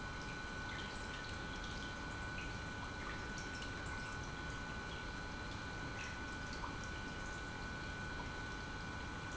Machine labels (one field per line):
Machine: pump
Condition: normal